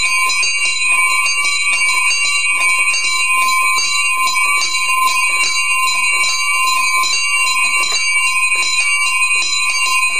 Multiple bells ringing